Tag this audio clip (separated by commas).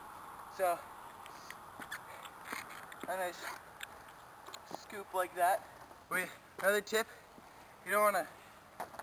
Skateboard, Speech